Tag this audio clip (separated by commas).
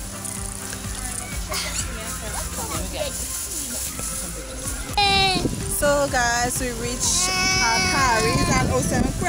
Speech